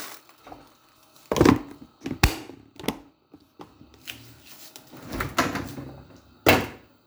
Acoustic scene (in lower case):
kitchen